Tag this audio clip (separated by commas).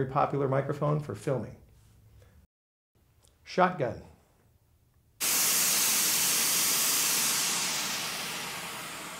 Steam